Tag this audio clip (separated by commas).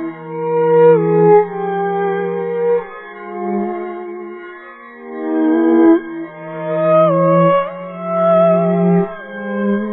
playing theremin